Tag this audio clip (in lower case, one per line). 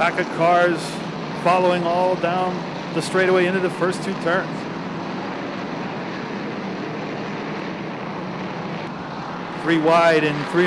auto racing
car
vehicle